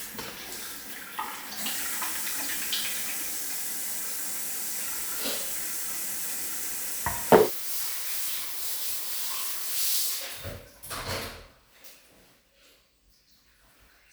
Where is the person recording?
in a restroom